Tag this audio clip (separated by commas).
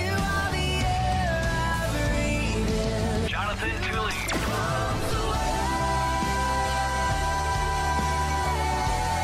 Gospel music, Speech, Music